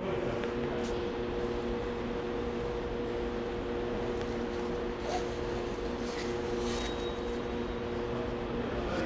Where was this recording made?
in a subway station